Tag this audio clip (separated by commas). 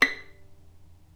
Musical instrument, Bowed string instrument, Music